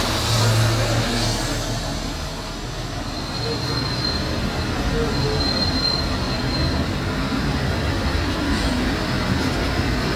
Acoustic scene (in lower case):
street